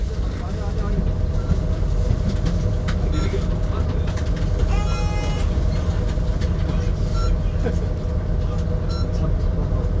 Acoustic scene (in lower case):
bus